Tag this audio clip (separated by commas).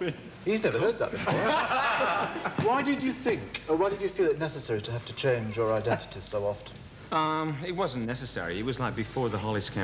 Speech